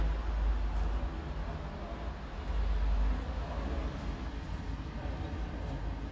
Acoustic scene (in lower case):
elevator